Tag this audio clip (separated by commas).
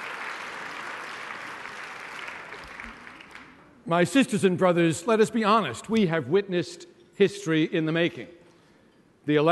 man speaking, Speech, Narration